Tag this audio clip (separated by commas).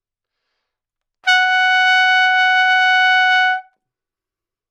Brass instrument, Music, Trumpet, Musical instrument